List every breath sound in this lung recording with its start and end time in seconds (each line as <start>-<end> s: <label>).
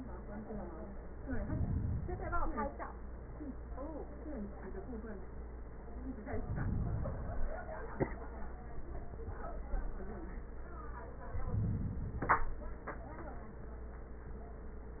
1.21-2.63 s: inhalation
6.22-7.65 s: inhalation
11.25-12.64 s: inhalation